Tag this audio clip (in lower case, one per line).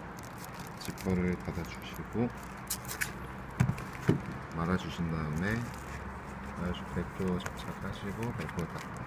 speech